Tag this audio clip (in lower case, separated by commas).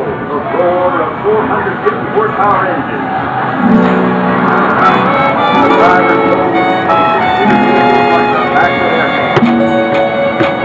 speech, music